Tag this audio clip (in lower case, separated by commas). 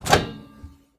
microwave oven, home sounds